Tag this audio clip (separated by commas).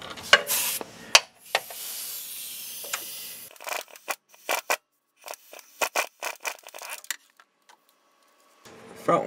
Speech